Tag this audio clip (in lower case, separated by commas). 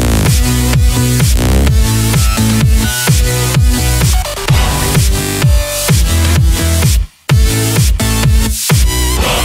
music, electronic dance music